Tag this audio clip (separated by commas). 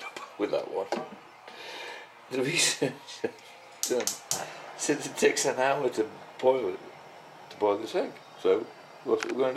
Speech